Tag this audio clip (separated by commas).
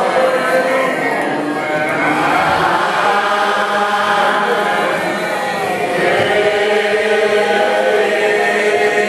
Speech, Choir, Singing